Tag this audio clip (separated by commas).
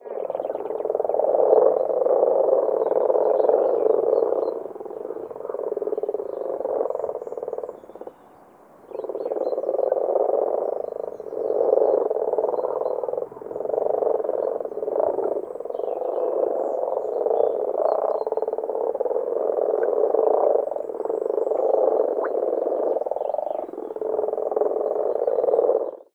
Wild animals, Animal, Frog